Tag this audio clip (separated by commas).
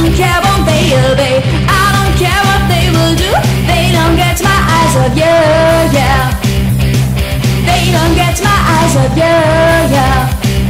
Music